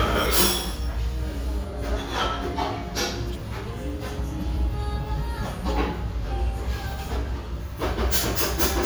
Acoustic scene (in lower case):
restaurant